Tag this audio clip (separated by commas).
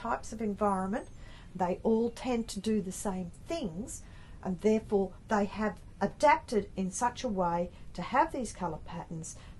Speech